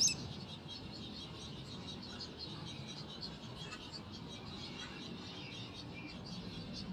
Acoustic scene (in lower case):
park